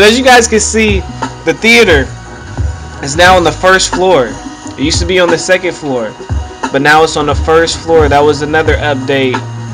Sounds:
Music, Speech

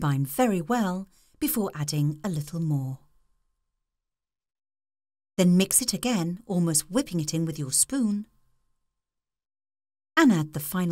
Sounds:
Speech

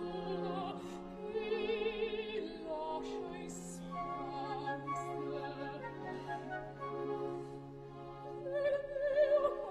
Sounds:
Opera, Music

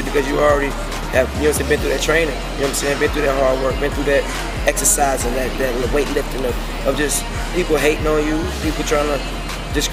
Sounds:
Speech, Music

